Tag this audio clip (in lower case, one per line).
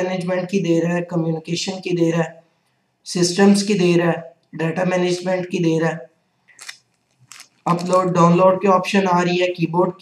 speech
inside a small room